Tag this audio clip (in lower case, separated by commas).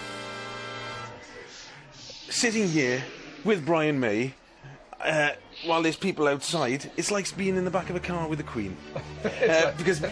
music, speech